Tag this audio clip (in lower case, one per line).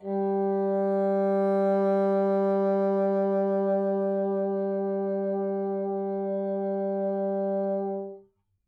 musical instrument
wind instrument
music